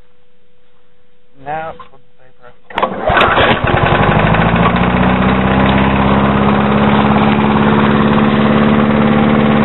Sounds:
outside, rural or natural
speech

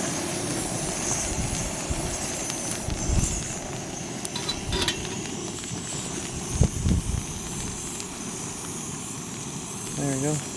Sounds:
outside, rural or natural

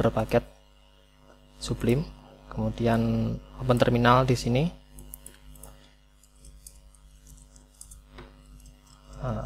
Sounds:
typing

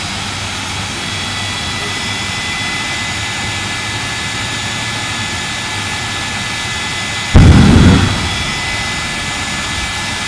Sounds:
vehicle

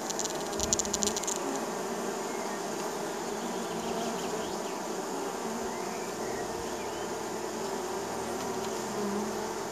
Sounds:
wasp

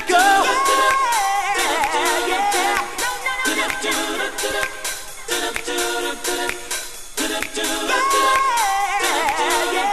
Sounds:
music

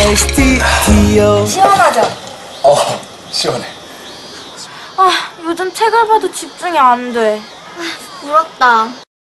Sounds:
music
speech

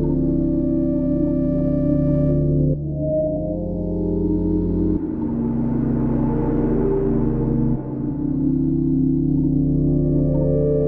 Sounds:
music

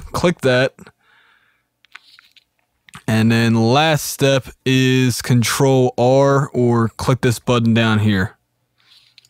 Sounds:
speech

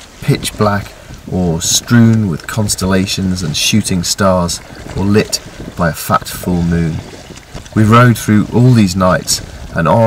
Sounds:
vehicle
ocean
boat
speech
rowboat

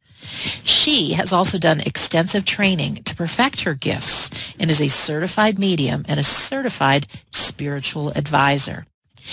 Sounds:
speech

